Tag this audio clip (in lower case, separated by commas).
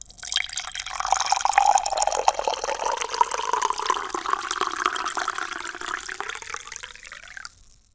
trickle, pour, fill (with liquid), liquid